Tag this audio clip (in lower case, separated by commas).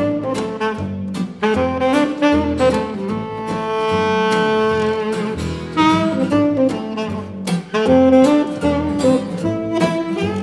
music